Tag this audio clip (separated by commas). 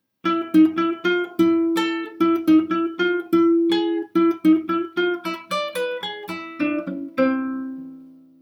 Plucked string instrument, Music, Guitar, Musical instrument